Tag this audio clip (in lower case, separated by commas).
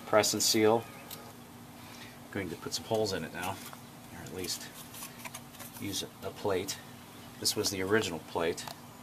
speech